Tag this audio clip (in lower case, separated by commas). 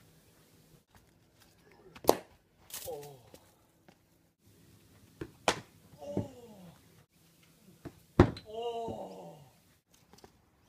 outside, rural or natural